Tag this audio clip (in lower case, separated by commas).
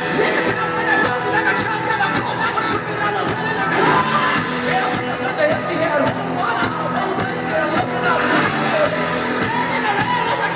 rock music, music